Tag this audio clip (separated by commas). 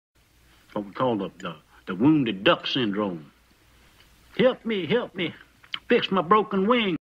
Speech